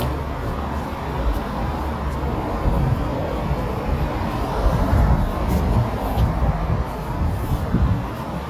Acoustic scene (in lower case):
street